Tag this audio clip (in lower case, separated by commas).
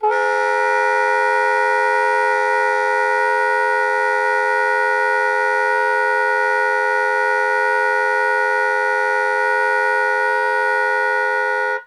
wind instrument, musical instrument, music